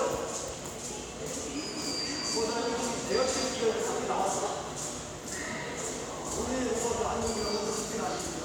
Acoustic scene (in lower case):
subway station